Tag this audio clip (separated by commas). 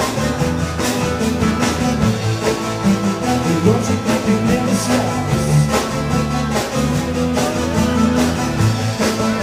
Music, Musical instrument, Guitar, Singing, Drum